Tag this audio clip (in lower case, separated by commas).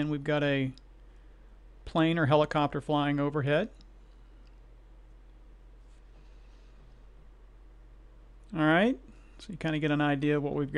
speech